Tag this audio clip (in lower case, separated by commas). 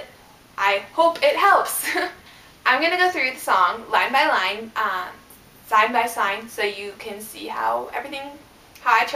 speech